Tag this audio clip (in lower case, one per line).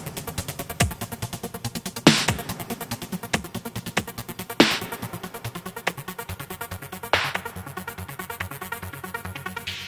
dubstep
music